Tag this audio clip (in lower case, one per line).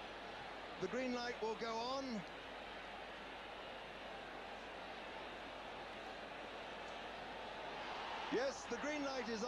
speech